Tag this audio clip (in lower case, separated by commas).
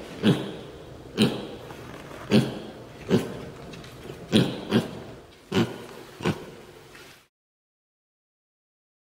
pig oinking